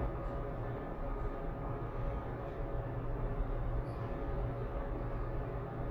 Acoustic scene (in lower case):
elevator